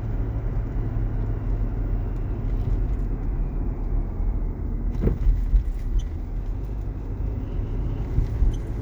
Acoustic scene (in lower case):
car